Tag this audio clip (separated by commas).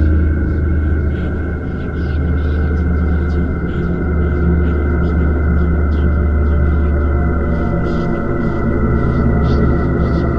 Music